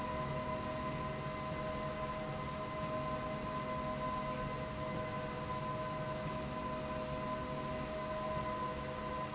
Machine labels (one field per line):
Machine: slide rail